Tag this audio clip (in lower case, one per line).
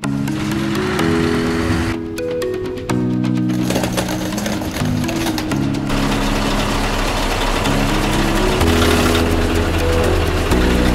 truck
vehicle